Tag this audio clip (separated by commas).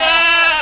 Animal, livestock